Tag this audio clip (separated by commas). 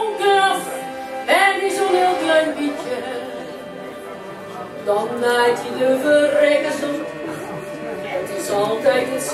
Accordion, Music, Speech